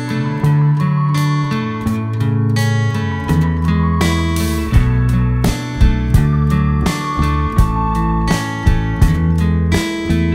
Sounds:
Printer, Music

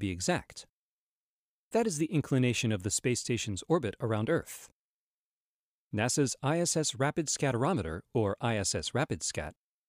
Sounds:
Speech

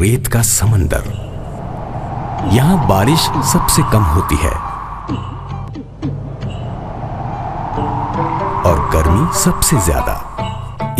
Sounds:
Music, Speech

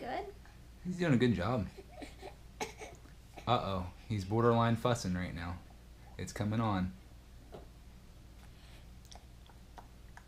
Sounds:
inside a small room, Speech

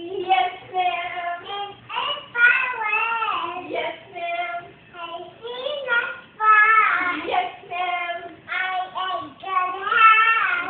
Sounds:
Speech

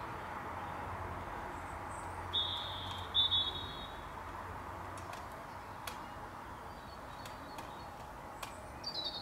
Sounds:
magpie calling

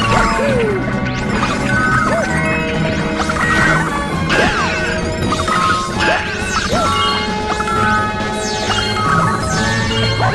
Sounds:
Music

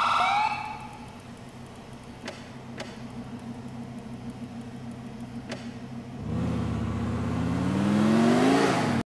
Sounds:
Vehicle, Car

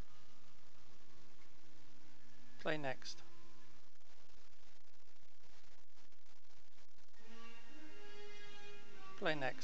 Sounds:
Speech, Male speech

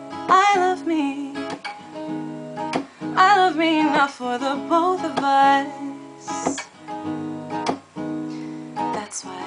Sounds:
Music

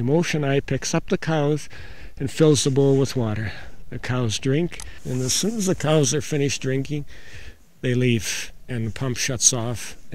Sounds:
Speech

